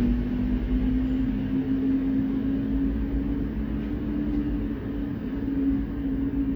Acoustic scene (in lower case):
street